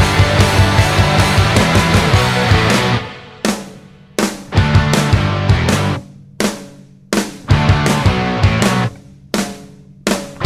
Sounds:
music

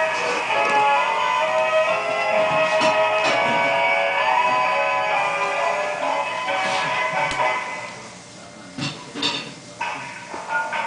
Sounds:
music

